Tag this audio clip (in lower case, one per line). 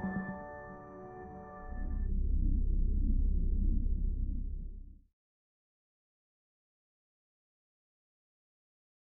music